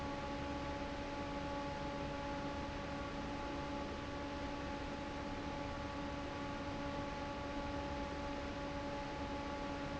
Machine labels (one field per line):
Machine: fan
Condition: normal